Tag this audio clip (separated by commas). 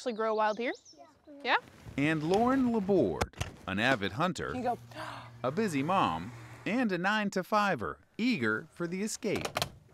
Speech